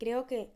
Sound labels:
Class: speech